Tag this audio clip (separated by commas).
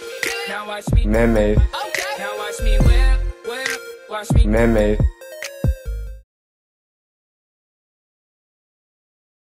Music